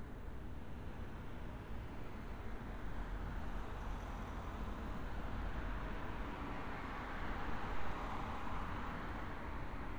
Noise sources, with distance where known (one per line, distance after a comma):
medium-sounding engine